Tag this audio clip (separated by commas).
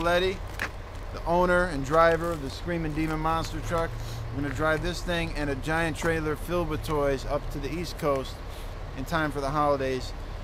Truck, Speech, Vehicle